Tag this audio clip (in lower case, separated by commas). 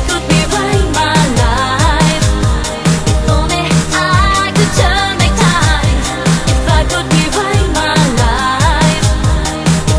music